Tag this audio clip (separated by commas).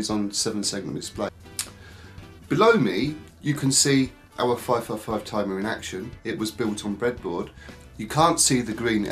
Music, Speech